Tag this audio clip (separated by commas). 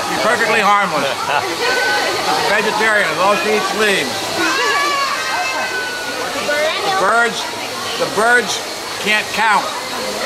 Speech